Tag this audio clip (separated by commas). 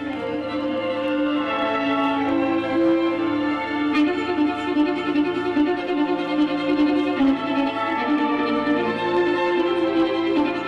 Music